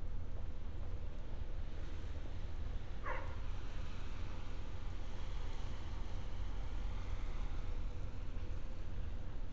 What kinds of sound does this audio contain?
dog barking or whining